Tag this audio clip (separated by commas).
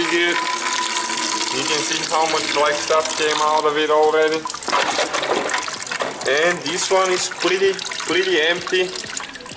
Pump (liquid), Water, Speech, Liquid